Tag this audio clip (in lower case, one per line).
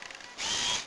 mechanisms
camera